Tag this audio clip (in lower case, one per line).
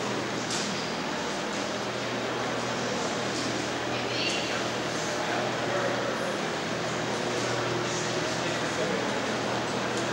speech